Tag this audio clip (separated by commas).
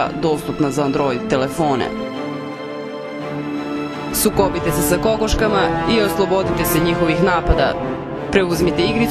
Speech, Music